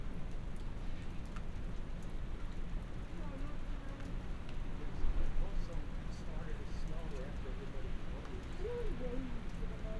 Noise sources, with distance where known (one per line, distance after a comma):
person or small group talking, far